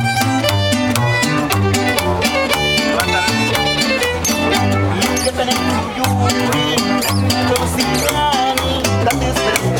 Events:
0.0s-9.7s: music
3.0s-3.6s: man speaking
4.9s-5.6s: male singing
6.0s-9.7s: male singing

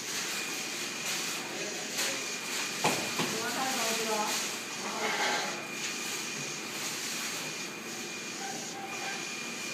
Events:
0.0s-9.7s: printer
1.5s-2.4s: speech
2.8s-3.0s: generic impact sounds
3.2s-3.3s: generic impact sounds
3.2s-4.4s: woman speaking
4.8s-5.6s: generic impact sounds
8.4s-9.2s: generic impact sounds

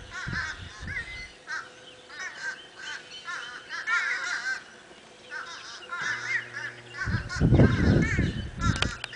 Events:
0.0s-1.3s: wind noise (microphone)
0.0s-9.0s: wind
0.1s-0.5s: crow
0.6s-2.0s: tweet
0.8s-1.3s: crow
1.4s-1.7s: crow
2.1s-2.5s: crow
2.1s-3.3s: tweet
2.8s-3.0s: crow
3.2s-4.6s: crow
5.3s-7.0s: tweet
5.3s-6.8s: crow
6.9s-8.4s: crow
7.1s-8.9s: wind noise (microphone)
7.4s-8.4s: tweet
8.6s-9.0s: crow
8.8s-8.9s: tick

